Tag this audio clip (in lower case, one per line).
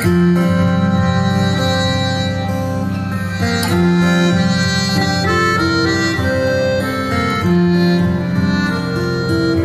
music